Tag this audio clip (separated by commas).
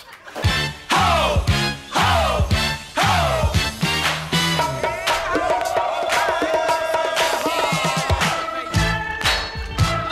Music